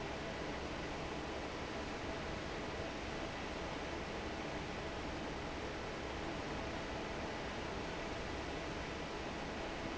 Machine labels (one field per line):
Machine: fan